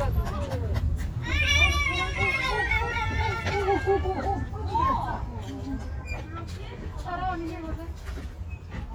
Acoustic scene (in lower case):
residential area